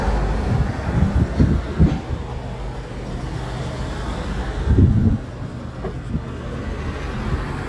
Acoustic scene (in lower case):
street